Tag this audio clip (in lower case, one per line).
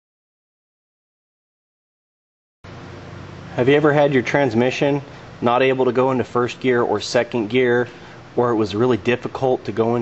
speech